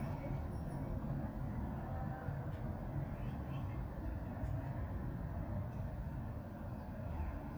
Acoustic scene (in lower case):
residential area